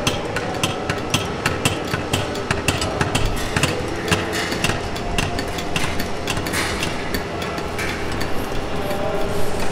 Something clanks over and over again